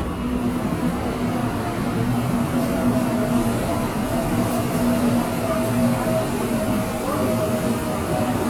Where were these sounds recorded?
in a subway station